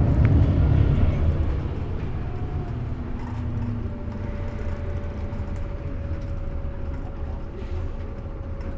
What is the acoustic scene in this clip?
bus